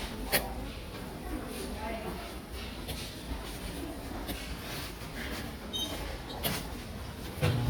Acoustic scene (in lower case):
subway station